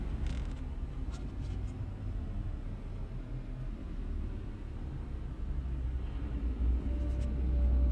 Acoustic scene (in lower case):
car